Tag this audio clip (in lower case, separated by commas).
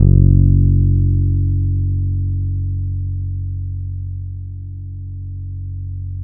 musical instrument, plucked string instrument, guitar, music, bass guitar